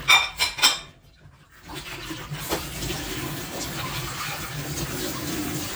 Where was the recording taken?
in a kitchen